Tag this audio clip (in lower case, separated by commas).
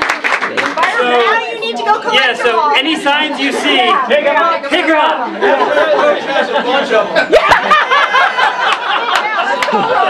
conversation, man speaking, female speech, monologue, speech